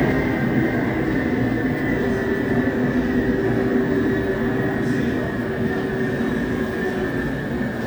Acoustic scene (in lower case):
subway station